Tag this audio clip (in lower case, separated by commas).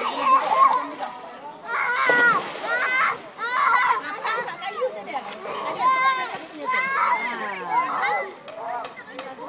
vehicle, speech